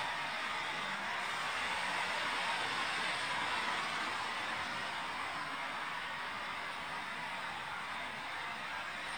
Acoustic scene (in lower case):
street